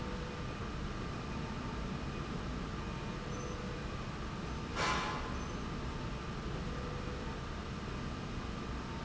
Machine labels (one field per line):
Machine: slide rail